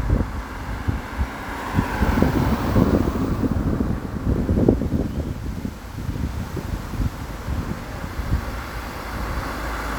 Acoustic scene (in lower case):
street